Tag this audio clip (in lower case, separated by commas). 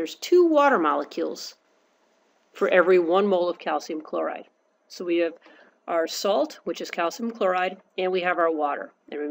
speech